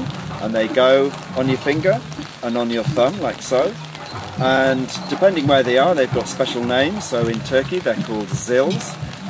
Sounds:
music, musical instrument, speech, drum

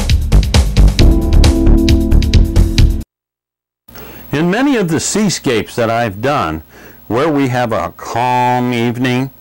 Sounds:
music, speech

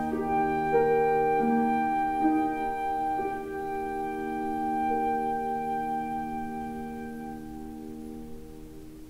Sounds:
classical music, woodwind instrument, flute, musical instrument, music

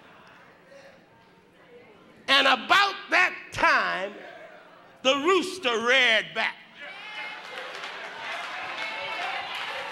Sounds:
speech

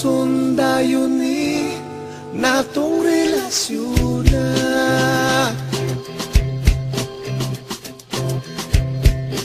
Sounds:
sad music, music, independent music

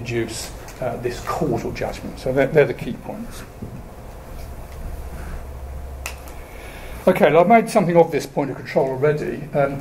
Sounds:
inside a small room, speech

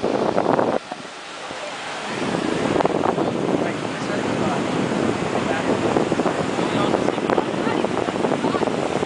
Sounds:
waves, ocean burbling, ocean

